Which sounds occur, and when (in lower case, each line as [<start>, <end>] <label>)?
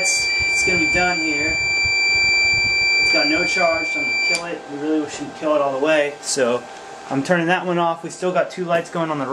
[0.00, 0.16] human voice
[0.00, 4.38] sine wave
[0.00, 9.32] mechanisms
[0.35, 0.96] wind noise (microphone)
[0.62, 1.56] male speech
[1.26, 1.91] wind noise (microphone)
[2.13, 3.15] wind noise (microphone)
[3.09, 4.05] male speech
[4.31, 4.55] male speech
[4.68, 5.29] male speech
[5.42, 6.08] male speech
[6.27, 6.62] male speech
[7.06, 9.32] male speech
[8.71, 8.88] tap